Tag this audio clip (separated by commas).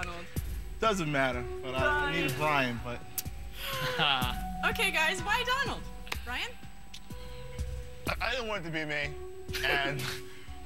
Music, Speech